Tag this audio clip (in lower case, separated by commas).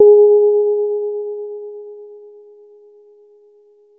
piano, music, keyboard (musical), musical instrument